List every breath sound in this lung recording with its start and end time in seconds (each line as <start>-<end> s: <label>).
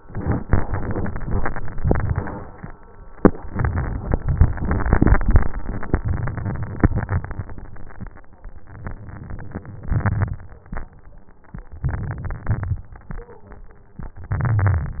8.84-9.88 s: inhalation
9.92-10.73 s: exhalation
9.92-10.73 s: crackles
11.71-12.45 s: crackles
11.71-12.52 s: inhalation
12.49-13.30 s: exhalation
12.49-13.30 s: crackles
14.24-15.00 s: inhalation
14.24-15.00 s: crackles